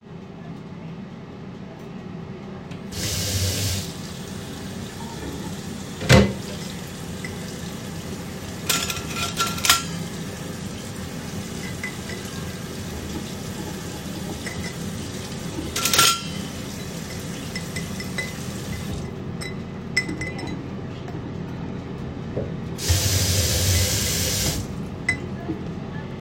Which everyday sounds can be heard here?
running water, cutlery and dishes